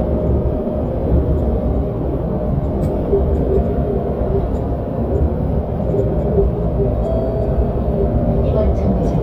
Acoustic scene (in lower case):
bus